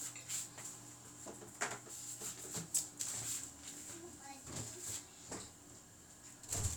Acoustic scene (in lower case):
restroom